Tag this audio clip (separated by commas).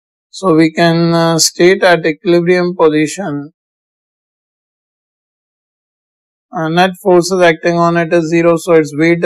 Speech